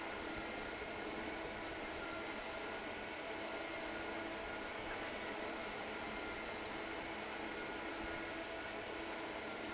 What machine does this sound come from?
fan